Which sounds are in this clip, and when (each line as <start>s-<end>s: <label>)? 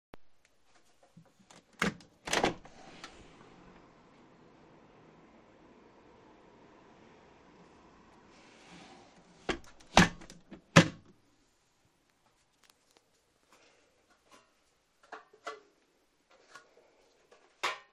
1.4s-4.0s: window
8.3s-11.2s: window